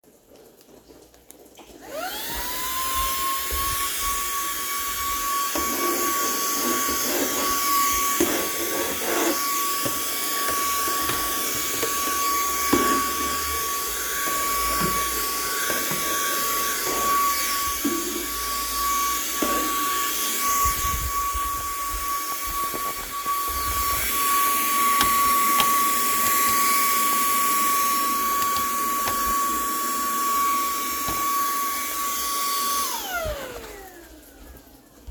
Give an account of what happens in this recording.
Turned on vacuum cleaner, cleaned office, closed door, turned off vacuum cleaner.